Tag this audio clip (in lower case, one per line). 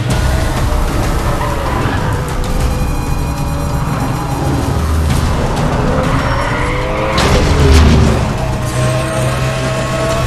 music